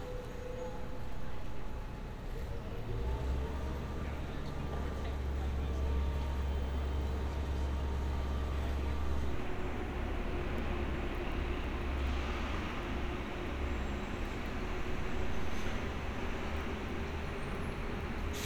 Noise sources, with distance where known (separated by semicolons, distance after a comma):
large-sounding engine, near